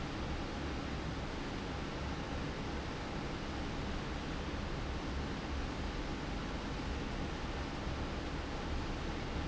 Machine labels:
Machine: fan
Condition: abnormal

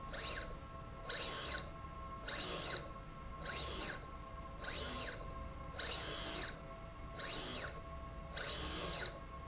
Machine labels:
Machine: slide rail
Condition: abnormal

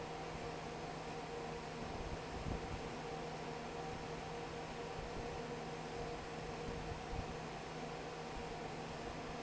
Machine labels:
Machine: fan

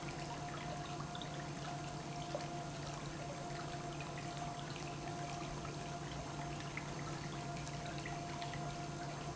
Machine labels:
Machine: pump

